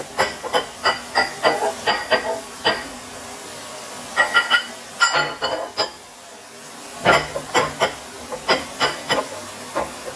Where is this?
in a kitchen